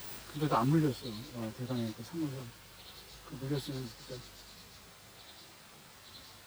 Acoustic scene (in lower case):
park